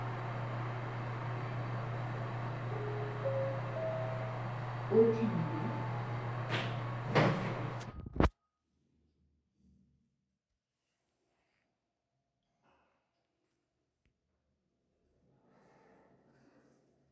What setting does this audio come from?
elevator